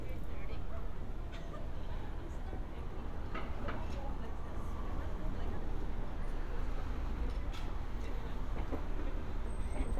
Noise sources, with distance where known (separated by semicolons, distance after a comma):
siren, far; person or small group talking, near; dog barking or whining, far